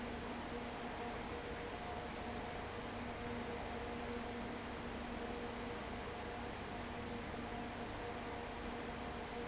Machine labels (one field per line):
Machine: fan